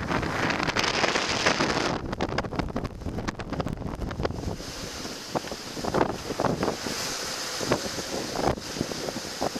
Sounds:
wind noise, Wind, Wind noise (microphone)

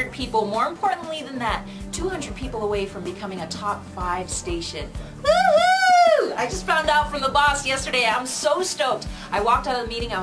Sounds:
Speech, Music

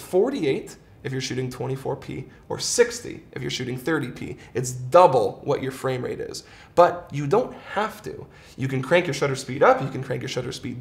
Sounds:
Speech

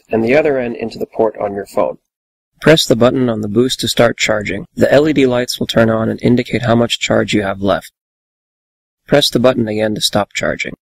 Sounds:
Speech

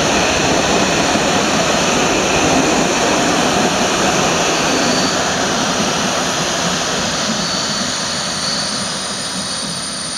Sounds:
train wagon, Vehicle, Rail transport, Train

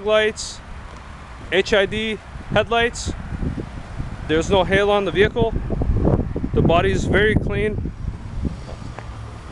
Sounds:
Speech, Car, Vehicle

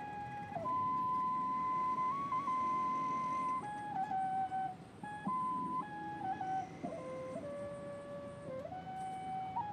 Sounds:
Music, Flute

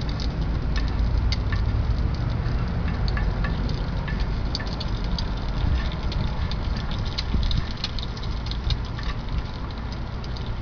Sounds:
outside, urban or man-made

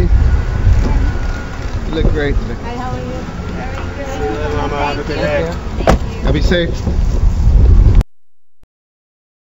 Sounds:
Speech, Vehicle

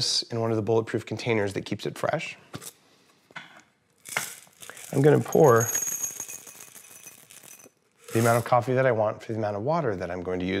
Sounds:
Speech

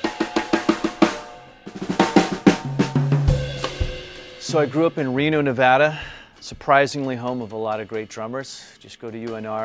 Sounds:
Music, Speech

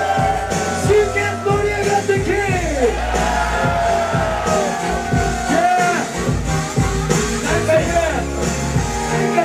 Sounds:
Speech, Music

